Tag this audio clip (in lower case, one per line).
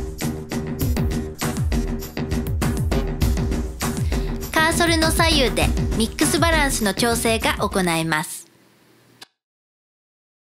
speech
music